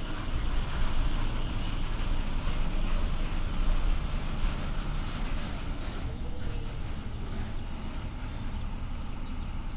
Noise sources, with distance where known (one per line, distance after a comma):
engine of unclear size, near